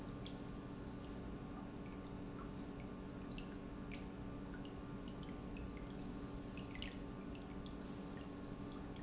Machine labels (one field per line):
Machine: pump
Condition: normal